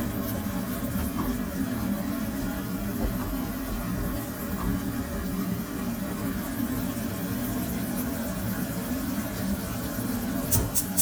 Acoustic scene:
kitchen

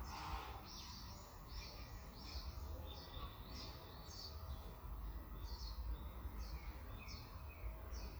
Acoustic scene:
park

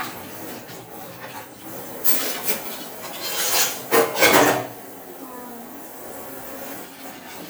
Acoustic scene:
kitchen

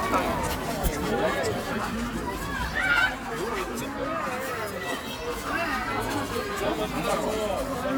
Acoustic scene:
park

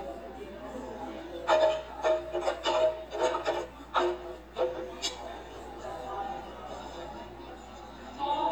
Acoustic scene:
cafe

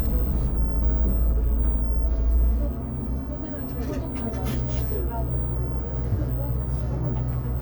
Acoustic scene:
bus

